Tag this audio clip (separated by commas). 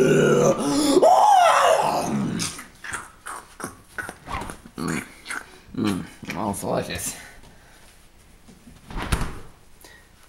Growling